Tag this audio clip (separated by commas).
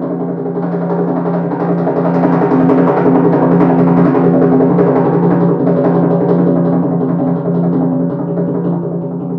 playing timpani